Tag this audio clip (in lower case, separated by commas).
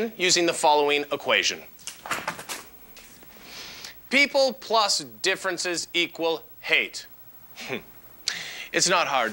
speech